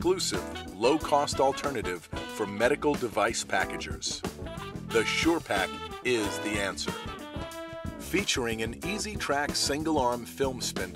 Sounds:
speech, music

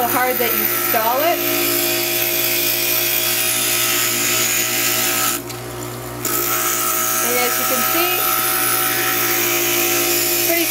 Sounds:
speech

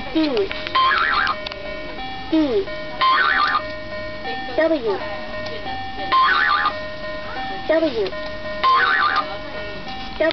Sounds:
speech, music

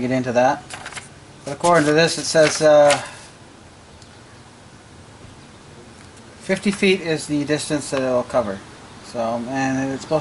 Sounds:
speech, inside a small room

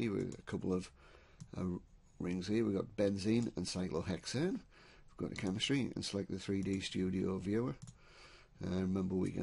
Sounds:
speech

